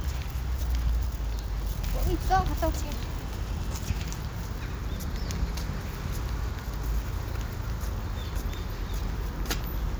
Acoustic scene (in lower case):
residential area